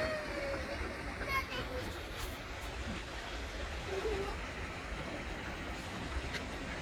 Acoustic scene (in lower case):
park